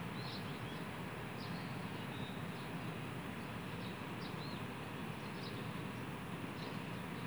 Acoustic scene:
park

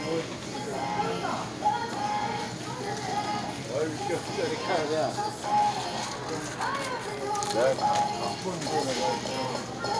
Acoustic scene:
crowded indoor space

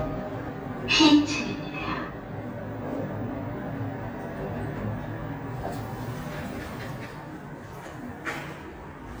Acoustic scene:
elevator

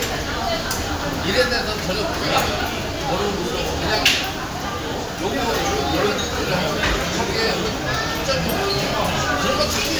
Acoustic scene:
crowded indoor space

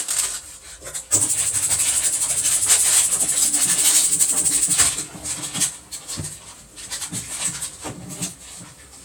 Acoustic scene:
kitchen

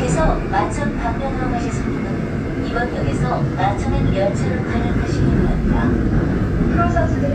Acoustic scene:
subway train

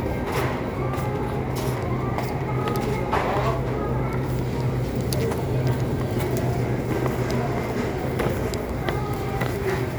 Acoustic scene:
crowded indoor space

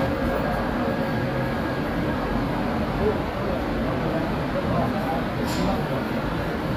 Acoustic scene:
subway station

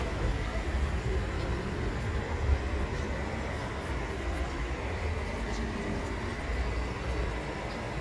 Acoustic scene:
park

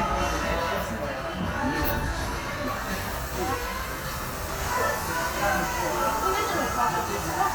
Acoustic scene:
cafe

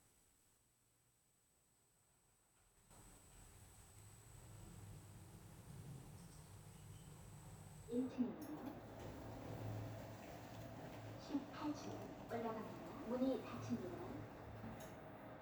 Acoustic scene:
elevator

